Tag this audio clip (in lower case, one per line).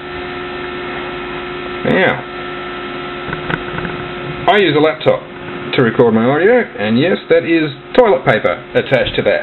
speech